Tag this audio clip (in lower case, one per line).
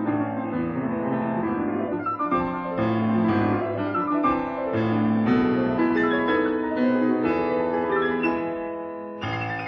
music